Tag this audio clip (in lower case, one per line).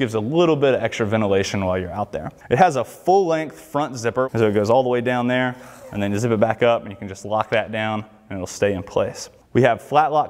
speech